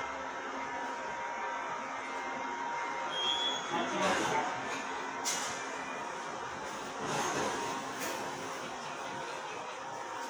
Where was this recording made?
in a subway station